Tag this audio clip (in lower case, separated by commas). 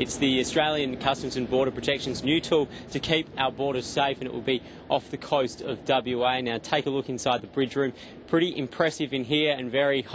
speech